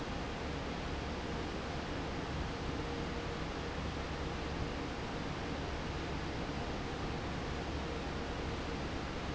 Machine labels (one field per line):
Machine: fan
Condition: normal